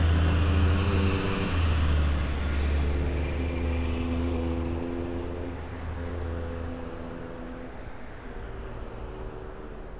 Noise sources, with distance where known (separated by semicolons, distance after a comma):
engine of unclear size, near